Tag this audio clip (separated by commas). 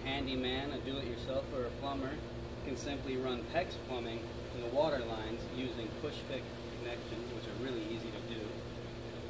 Speech